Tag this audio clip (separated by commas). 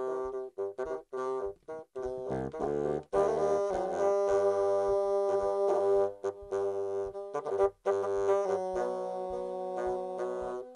Musical instrument